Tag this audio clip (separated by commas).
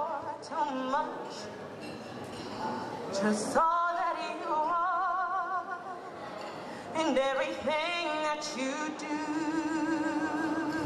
Speech, Female singing